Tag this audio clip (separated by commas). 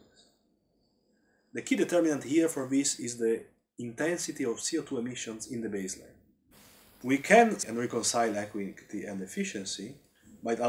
inside a small room, Speech